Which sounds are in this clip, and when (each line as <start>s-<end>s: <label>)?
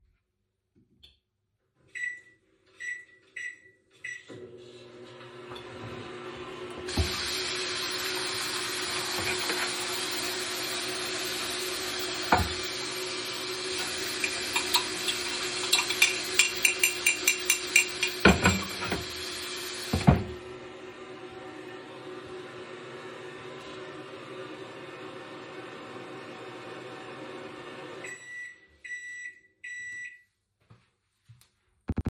1.9s-30.2s: microwave
6.9s-20.3s: running water
14.1s-20.2s: cutlery and dishes